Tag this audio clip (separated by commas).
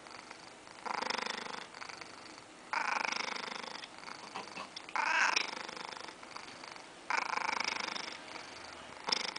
Purr, Cat, cat purring, Domestic animals, inside a small room, Animal, Snoring